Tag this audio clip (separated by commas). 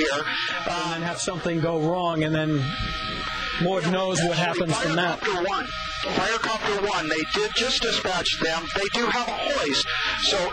Speech, Helicopter, Vehicle